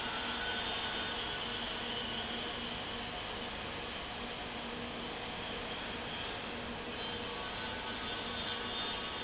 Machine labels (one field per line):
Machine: fan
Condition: abnormal